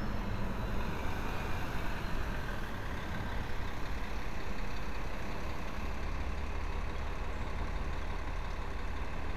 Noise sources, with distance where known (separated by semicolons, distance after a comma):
large-sounding engine, near